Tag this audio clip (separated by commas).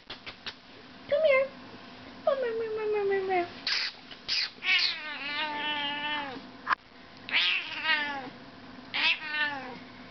Speech